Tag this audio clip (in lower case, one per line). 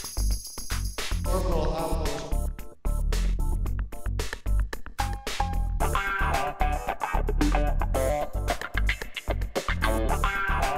music
speech